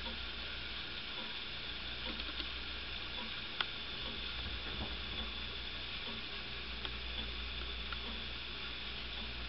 Constant ticktock sounds in a low tone along with a whirring background noise